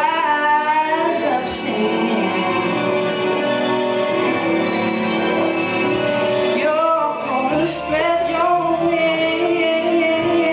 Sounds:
Female singing, Singing, Music

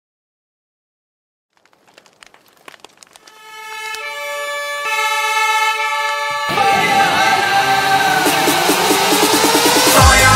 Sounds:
Electronic music, Electronic dance music, Music

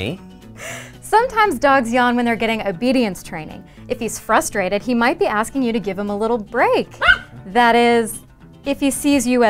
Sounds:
Dog

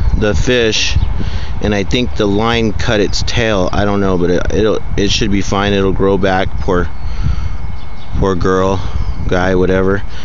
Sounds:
Gurgling, Speech

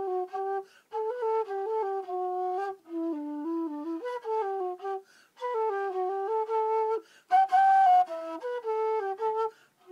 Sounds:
Wind instrument, Flute

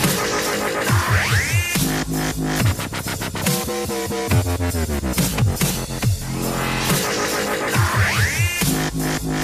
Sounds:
Music, Electronic music, Dubstep

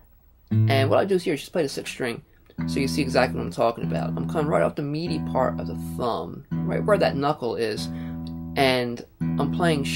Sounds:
Speech, Plucked string instrument, Musical instrument, Guitar, Music

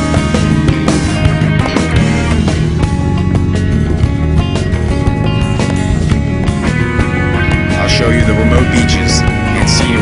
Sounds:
Music, Speech

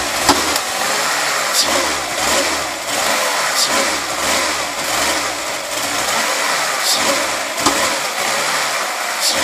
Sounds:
Engine, Vehicle

